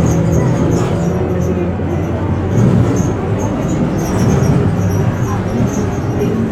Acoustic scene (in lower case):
bus